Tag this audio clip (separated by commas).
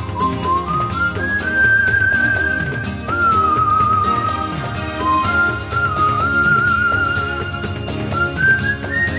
Music